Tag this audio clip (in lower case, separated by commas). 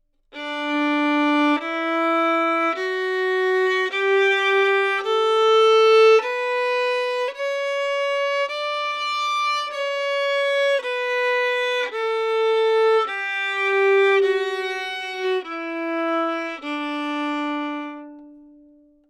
music, bowed string instrument, musical instrument